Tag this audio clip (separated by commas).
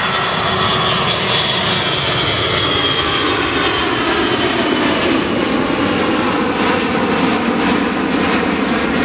airplane, Vehicle, Aircraft engine